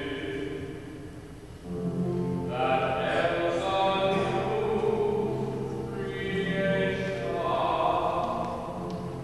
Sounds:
choir, music

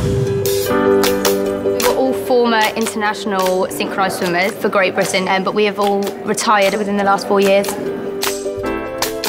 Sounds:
female speech

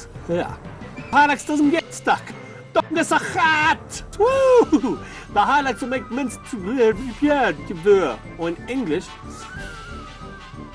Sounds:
speech, music

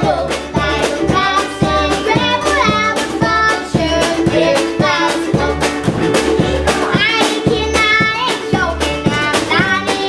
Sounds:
music

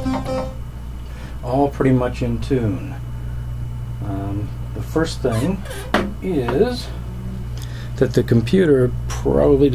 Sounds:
speech, music

